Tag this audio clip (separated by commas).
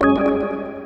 Organ, Musical instrument, Music, Keyboard (musical)